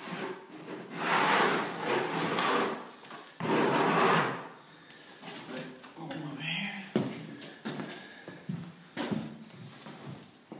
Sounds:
speech
sliding door

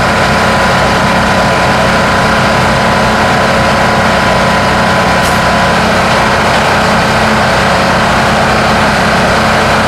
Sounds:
truck
vehicle

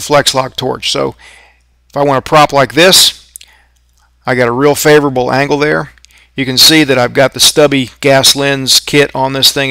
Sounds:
arc welding

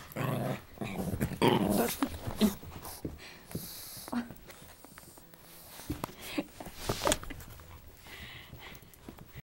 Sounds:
animal
dog
domestic animals

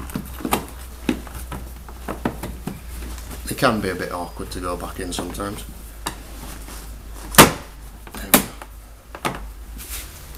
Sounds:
speech

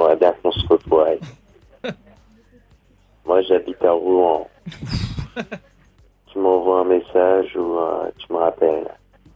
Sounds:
speech

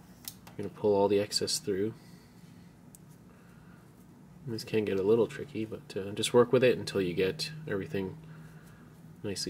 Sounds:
speech
inside a small room

